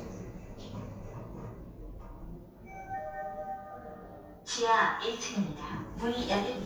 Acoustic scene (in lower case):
elevator